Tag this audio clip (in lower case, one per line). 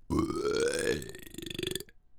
eructation